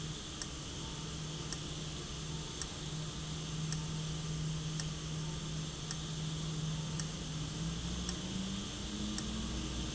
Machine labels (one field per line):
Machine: valve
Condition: abnormal